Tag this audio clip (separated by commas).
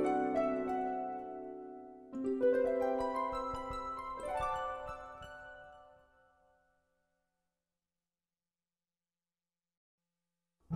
Musical instrument, Music